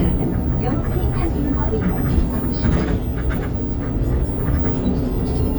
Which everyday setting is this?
bus